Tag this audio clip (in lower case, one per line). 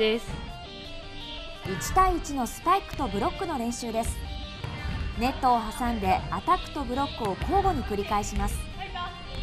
playing volleyball